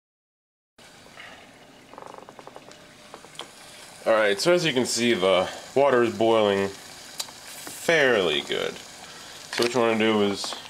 Water boils and a man speaks